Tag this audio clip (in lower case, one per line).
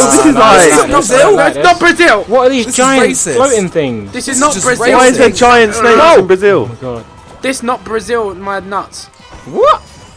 music
speech